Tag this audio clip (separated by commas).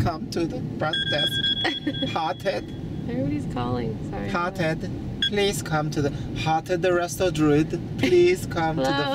Speech, Car, Vehicle